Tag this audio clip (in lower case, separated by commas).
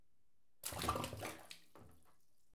water, liquid, splash